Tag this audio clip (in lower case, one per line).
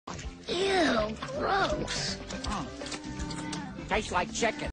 music
speech